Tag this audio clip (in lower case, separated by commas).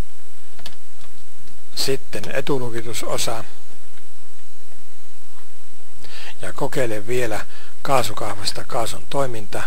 speech